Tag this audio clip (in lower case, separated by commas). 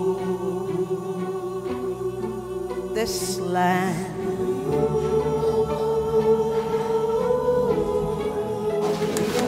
music